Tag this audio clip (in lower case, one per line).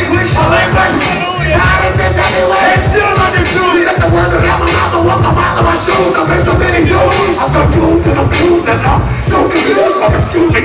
music